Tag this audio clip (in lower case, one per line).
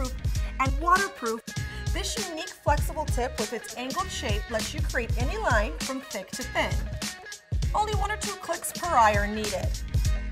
speech
music